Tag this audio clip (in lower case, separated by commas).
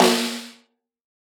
drum, snare drum, musical instrument, music, percussion